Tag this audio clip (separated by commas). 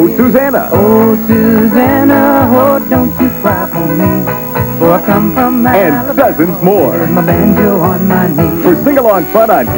Music